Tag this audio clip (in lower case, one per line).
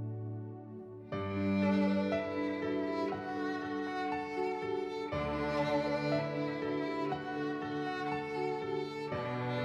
music
sad music
tender music